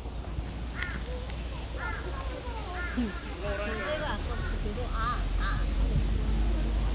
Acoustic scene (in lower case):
park